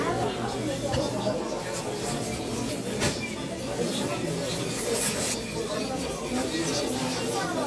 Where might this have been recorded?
in a crowded indoor space